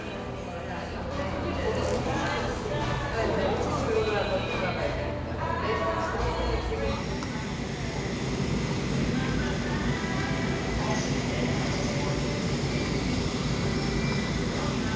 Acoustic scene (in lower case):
cafe